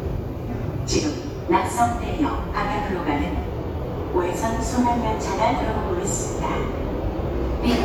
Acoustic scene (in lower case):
subway station